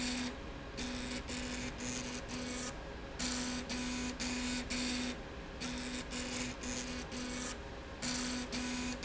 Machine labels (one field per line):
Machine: slide rail